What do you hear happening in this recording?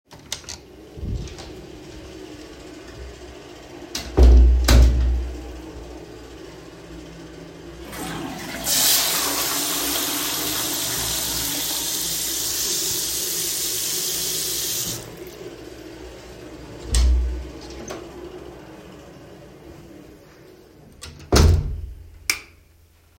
I opened the door and closed it behind me. I flushed the toilet and turned on the water at the same time. I stopped the water shortly after the flushing ended. I then opened the door, closed it, and turned off the light.